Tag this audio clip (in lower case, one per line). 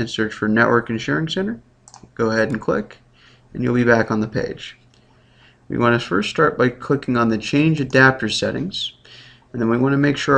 speech